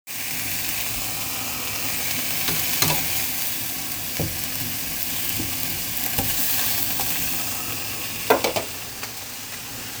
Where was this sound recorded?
in a kitchen